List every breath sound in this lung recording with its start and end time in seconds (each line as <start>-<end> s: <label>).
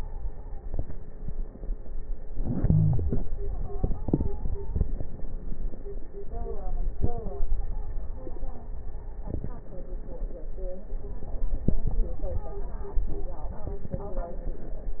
2.29-3.13 s: wheeze
2.29-3.71 s: inhalation
3.47-4.81 s: stridor
7.44-8.77 s: stridor
11.80-13.13 s: stridor